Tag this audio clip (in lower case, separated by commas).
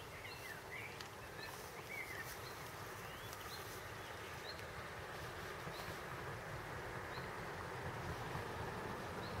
water vehicle, speedboat